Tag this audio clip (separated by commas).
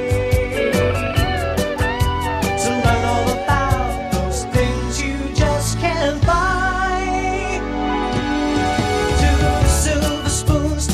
Music